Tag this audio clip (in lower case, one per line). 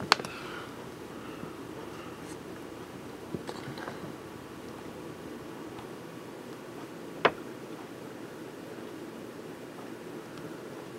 rustle